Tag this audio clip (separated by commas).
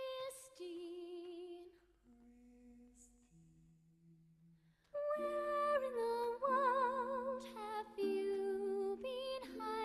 Music, Opera